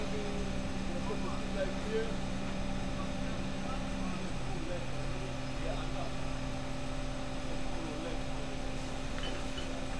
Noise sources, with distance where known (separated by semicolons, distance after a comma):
person or small group talking